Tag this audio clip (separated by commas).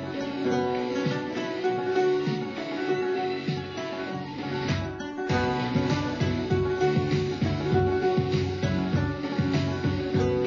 Music, Strum, Guitar, Musical instrument, Plucked string instrument, Acoustic guitar